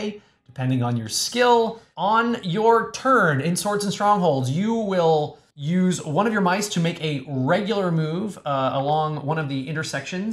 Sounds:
Speech

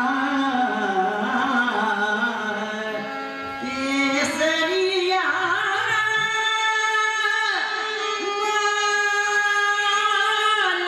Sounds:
Folk music, Music

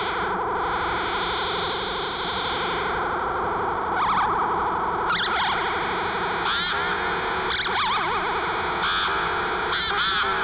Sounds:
Cacophony

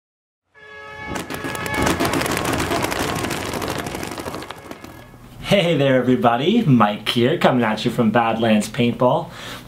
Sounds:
Speech

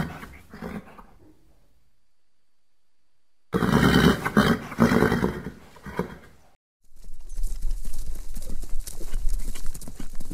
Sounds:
horse neighing

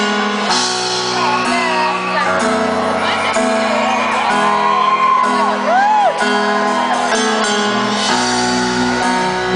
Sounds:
Music, Speech

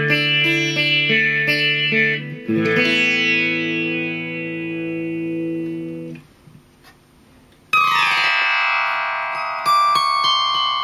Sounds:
Musical instrument, Music, Guitar, Electric guitar, Plucked string instrument

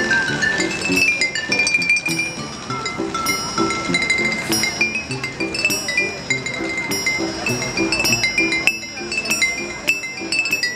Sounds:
playing glockenspiel

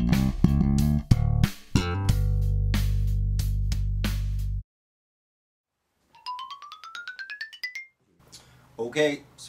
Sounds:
Music, Bass guitar, Musical instrument, Guitar, Speech

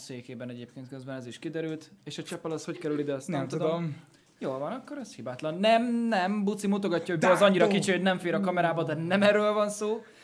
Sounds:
Speech

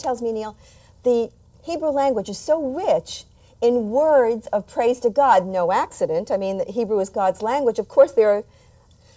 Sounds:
Speech

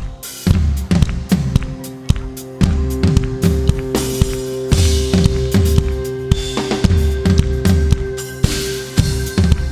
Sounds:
Music

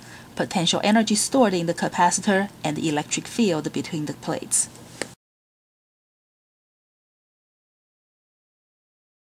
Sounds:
Speech

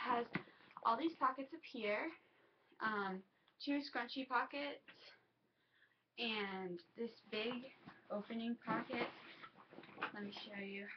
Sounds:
inside a small room, Speech

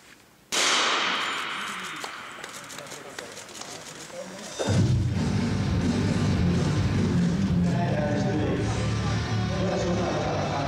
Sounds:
Run, Speech, Music

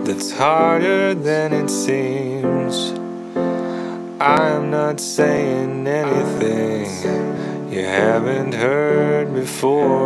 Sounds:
Music

